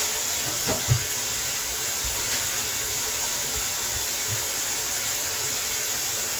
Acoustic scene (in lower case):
kitchen